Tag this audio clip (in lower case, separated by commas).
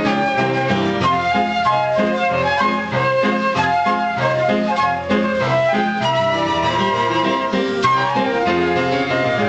music, flute